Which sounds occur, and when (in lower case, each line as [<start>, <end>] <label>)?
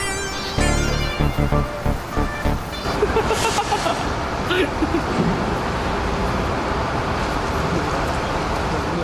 [0.00, 2.97] music
[0.00, 9.03] mechanisms
[2.81, 3.95] giggle
[4.42, 5.29] giggle
[8.61, 9.03] human sounds